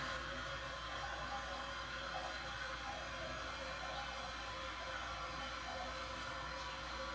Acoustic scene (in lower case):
restroom